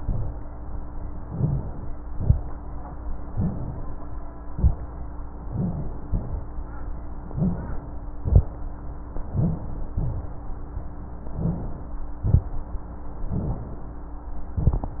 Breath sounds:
Inhalation: 1.27-1.96 s, 3.30-3.93 s, 5.45-6.07 s, 7.27-7.84 s, 9.32-9.91 s, 11.25-11.96 s, 13.30-13.95 s
Exhalation: 2.11-2.51 s, 4.52-4.92 s, 6.09-6.51 s, 8.22-8.52 s, 9.96-10.42 s, 12.22-12.73 s
Rhonchi: 1.25-1.63 s, 3.30-3.68 s, 5.52-5.90 s, 7.29-7.67 s, 9.32-9.70 s, 11.31-11.69 s

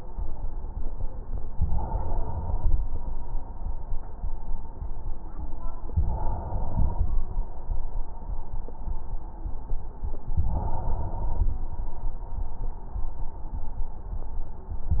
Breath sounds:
Inhalation: 1.50-2.80 s, 5.92-7.21 s, 10.47-11.65 s

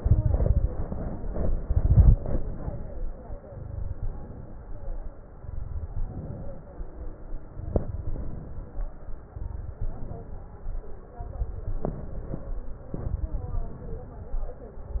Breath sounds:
Inhalation: 0.72-1.40 s, 2.22-2.90 s, 3.97-4.63 s, 6.04-6.71 s, 8.04-8.70 s, 9.82-10.49 s, 11.88-12.54 s, 13.59-14.25 s
Exhalation: 0.00-0.68 s, 1.48-2.16 s, 3.42-3.97 s, 5.36-5.98 s, 7.41-8.04 s, 9.25-9.77 s, 11.19-11.86 s, 12.88-13.55 s
Crackles: 0.00-0.68 s, 1.48-2.16 s, 3.42-3.97 s, 5.36-5.98 s, 7.41-8.04 s, 9.25-9.77 s, 11.19-11.86 s, 12.88-13.55 s

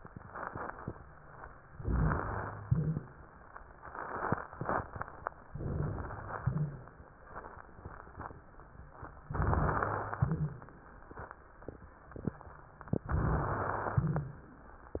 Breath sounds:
Inhalation: 1.74-2.62 s, 5.53-6.43 s, 9.31-10.22 s, 13.10-13.98 s
Exhalation: 2.62-3.25 s, 6.43-7.11 s, 10.22-10.90 s, 13.98-14.59 s
Wheeze: 2.69-3.13 s, 6.45-6.83 s, 10.21-10.60 s
Rhonchi: 13.95-14.35 s
Crackles: 1.74-2.62 s, 5.53-6.43 s, 9.31-10.22 s, 13.10-13.98 s

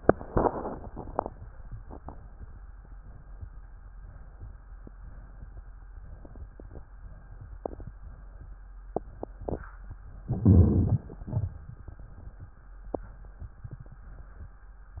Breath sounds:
Inhalation: 10.24-11.05 s
Exhalation: 11.11-11.92 s
Crackles: 10.24-11.05 s, 11.11-11.92 s

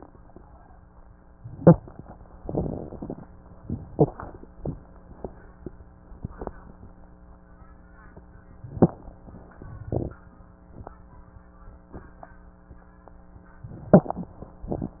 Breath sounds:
Inhalation: 1.56-1.84 s, 3.91-4.20 s, 8.71-8.99 s, 13.83-14.32 s
Exhalation: 2.47-3.27 s, 9.83-10.19 s
Crackles: 1.56-1.84 s, 2.47-3.27 s, 3.91-4.20 s, 8.71-8.99 s, 9.83-10.19 s, 13.83-14.32 s

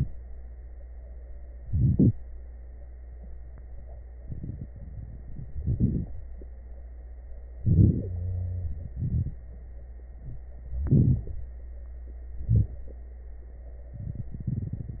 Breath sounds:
Inhalation: 1.56-2.17 s, 5.54-6.15 s, 7.64-8.08 s, 10.83-11.32 s, 12.47-12.82 s
Exhalation: 8.99-9.41 s
Wheeze: 8.06-9.00 s
Crackles: 5.54-6.15 s, 7.66-8.10 s

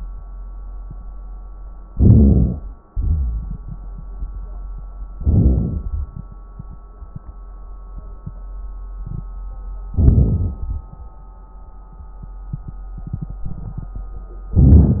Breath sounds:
Inhalation: 1.90-2.63 s, 5.17-5.88 s, 9.96-10.65 s, 14.56-15.00 s
Exhalation: 2.89-3.60 s
Crackles: 5.17-5.88 s, 9.96-10.65 s

